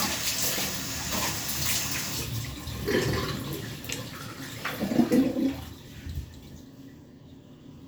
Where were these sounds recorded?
in a restroom